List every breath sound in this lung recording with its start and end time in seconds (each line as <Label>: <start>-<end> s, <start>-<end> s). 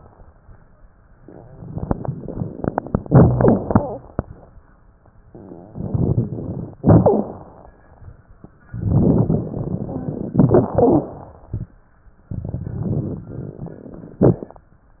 Inhalation: 5.33-6.76 s, 8.71-10.32 s, 12.31-14.18 s
Exhalation: 6.81-7.76 s, 10.38-11.75 s, 14.29-14.75 s
Crackles: 5.33-6.76 s, 6.81-7.76 s, 8.71-10.32 s, 10.38-11.75 s, 12.31-14.18 s, 14.29-14.75 s